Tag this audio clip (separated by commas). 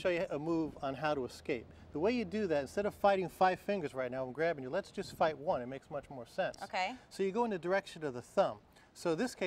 Speech